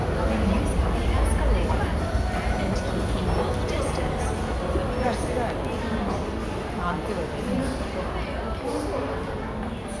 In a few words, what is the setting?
crowded indoor space